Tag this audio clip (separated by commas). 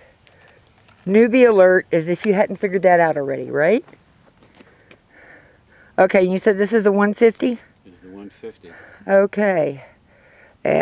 Speech